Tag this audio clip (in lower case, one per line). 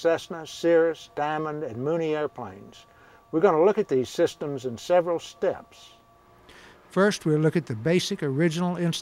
speech